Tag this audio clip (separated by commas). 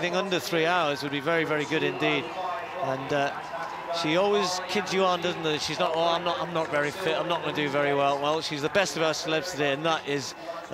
Speech, outside, urban or man-made